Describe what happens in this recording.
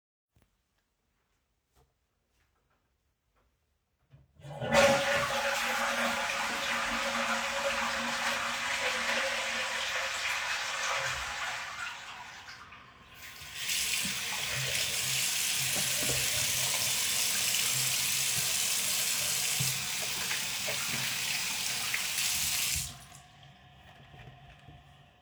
I flushed my toilet, went to my bathroom sink and washed my hands with running water and soap.